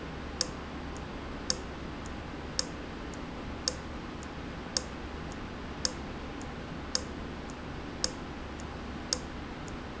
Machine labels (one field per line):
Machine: valve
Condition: abnormal